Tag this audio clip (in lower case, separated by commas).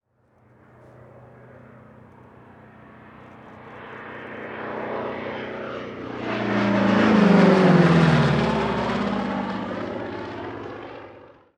aircraft, vehicle, airplane